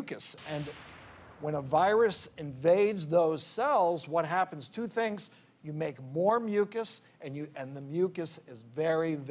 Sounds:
speech

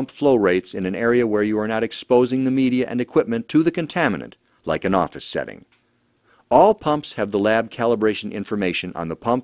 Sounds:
speech

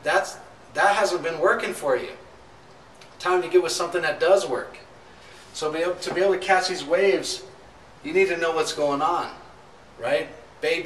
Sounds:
speech

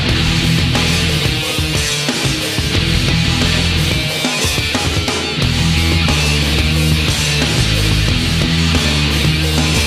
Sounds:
music

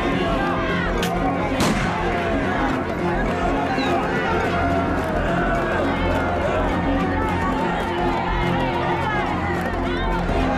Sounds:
speech
music

